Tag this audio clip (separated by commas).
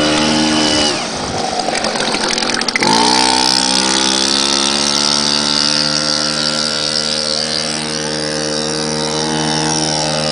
Vehicle, speedboat